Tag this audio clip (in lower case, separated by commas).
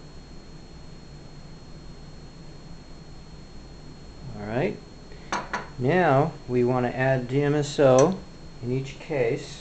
speech, dishes, pots and pans